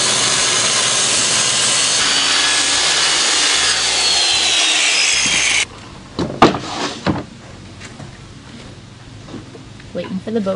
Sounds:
canoe

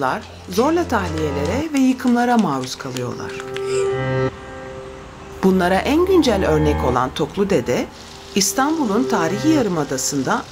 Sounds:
music, speech

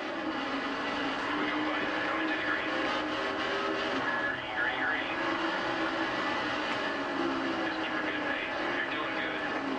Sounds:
speech

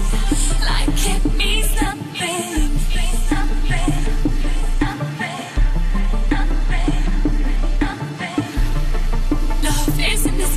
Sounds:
music

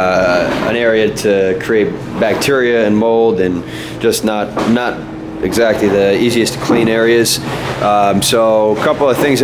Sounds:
speech

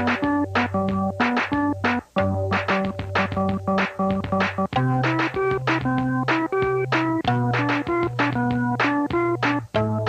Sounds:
electric piano, keyboard (musical), piano

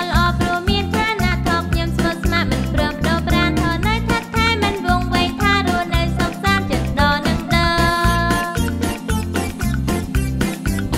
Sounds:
musical instrument, bowed string instrument, acoustic guitar, music for children, guitar, music

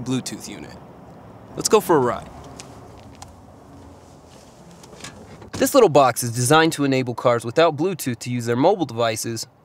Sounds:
speech

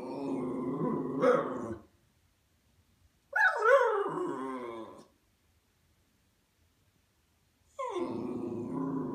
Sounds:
bark

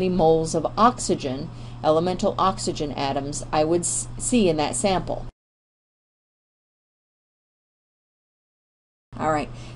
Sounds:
speech

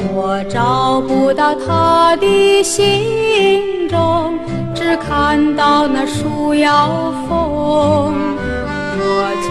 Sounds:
music

